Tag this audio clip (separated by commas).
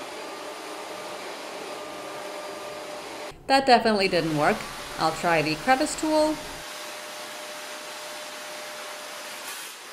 vacuum cleaner cleaning floors